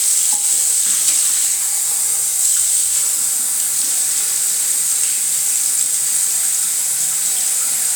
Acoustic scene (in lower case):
restroom